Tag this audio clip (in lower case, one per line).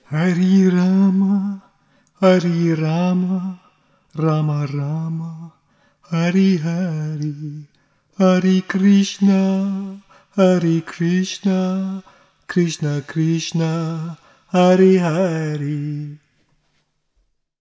singing
human voice